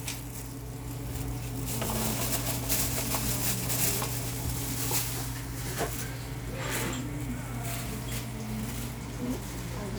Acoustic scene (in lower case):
cafe